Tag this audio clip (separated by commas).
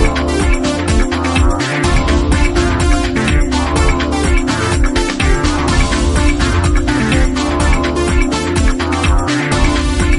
Video game music, Music